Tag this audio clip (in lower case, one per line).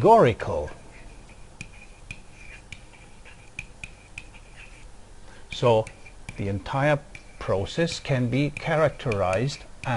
speech
inside a small room